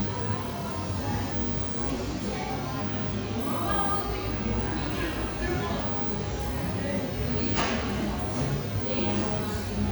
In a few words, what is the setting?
cafe